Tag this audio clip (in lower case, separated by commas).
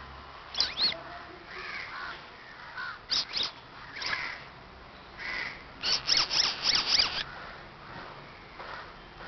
animal, domestic animals